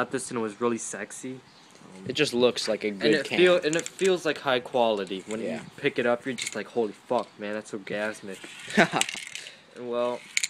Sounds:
Speech

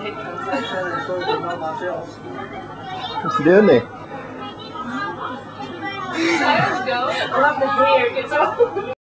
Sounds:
Speech

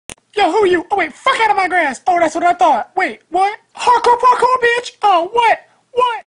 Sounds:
Speech

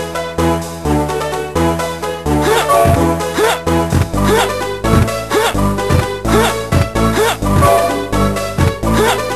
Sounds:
Video game music, Music

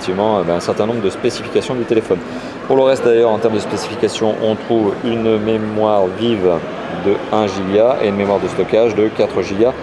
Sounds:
Speech

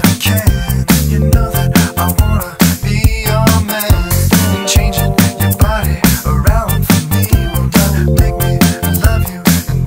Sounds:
Music

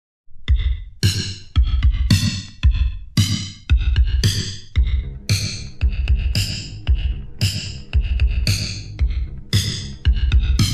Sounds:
Music

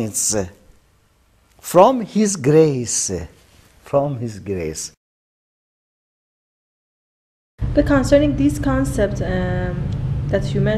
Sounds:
Speech

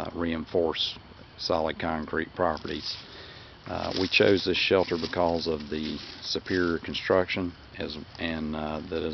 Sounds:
Speech

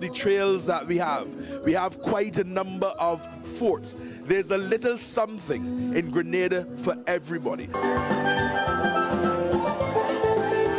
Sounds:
Music, Steelpan, Speech

